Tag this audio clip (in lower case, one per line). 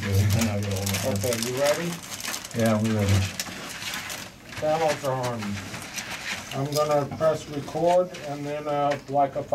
speech
crackle